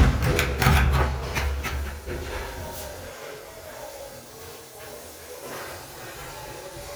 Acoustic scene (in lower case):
restroom